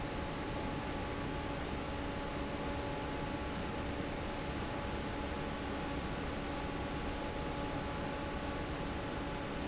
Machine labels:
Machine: fan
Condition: normal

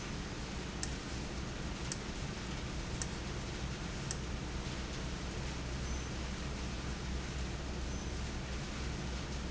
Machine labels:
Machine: valve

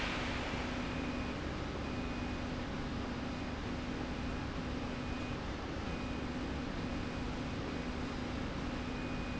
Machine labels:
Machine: slide rail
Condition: normal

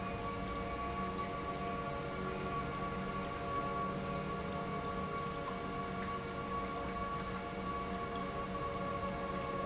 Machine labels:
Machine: pump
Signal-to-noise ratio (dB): -6 dB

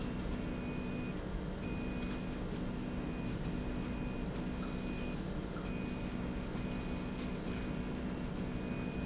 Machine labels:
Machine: slide rail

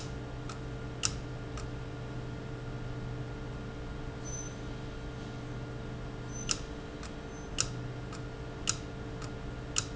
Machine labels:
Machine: valve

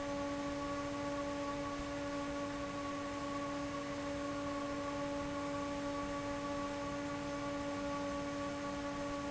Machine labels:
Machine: fan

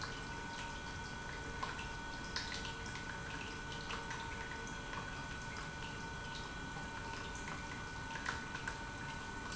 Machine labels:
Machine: pump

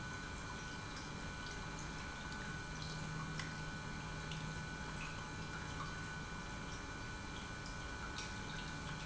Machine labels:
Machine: pump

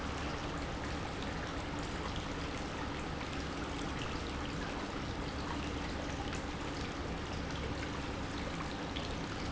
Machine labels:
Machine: pump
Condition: normal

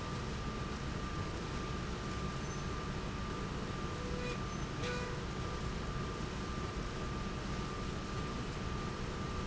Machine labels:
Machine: slide rail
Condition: normal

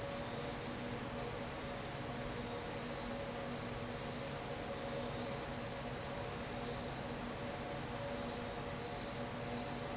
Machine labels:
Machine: fan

